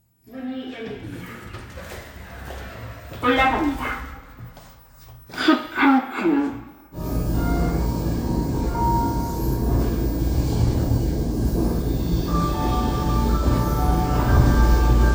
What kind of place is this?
elevator